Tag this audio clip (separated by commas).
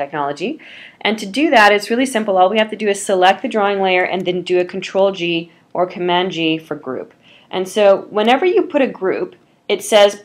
Speech